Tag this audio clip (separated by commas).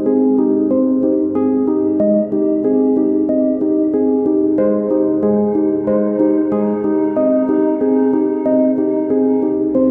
Music